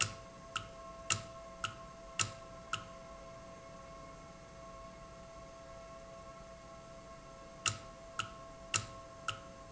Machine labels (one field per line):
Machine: valve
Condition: normal